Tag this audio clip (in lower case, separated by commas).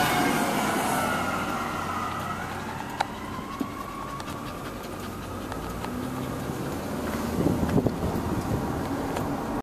vehicle, siren, car